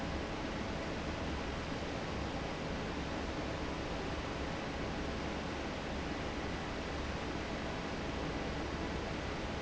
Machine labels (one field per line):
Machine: fan